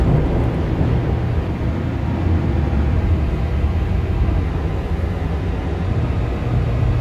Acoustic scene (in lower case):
subway train